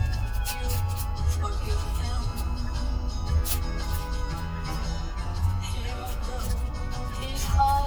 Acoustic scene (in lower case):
car